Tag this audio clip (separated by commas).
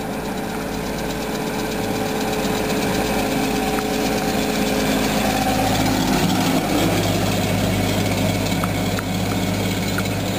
Vehicle, Truck